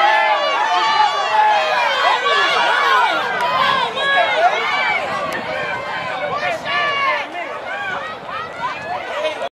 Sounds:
speech
outside, urban or man-made
run

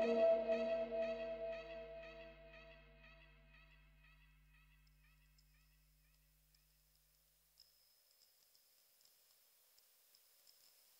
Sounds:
music

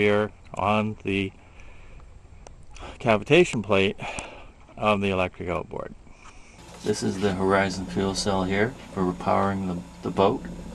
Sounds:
speech

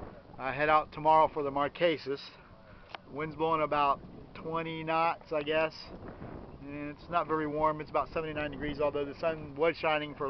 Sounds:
speech

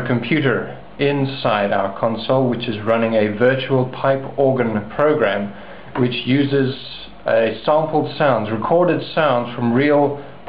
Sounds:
speech

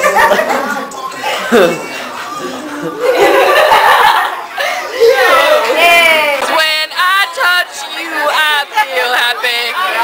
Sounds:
inside a large room or hall
speech
music

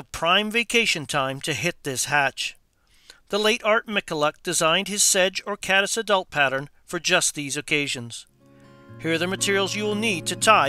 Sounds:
music
speech

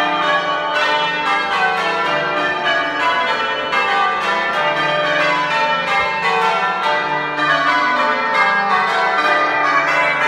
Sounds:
church bell ringing

